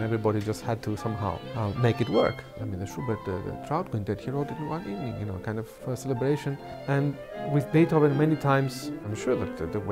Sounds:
fiddle, music, speech, musical instrument

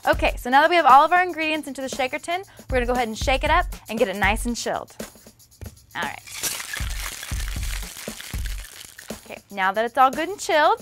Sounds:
music, speech, inside a small room

